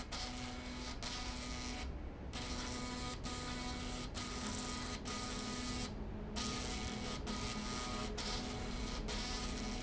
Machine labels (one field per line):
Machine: slide rail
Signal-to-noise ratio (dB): 0 dB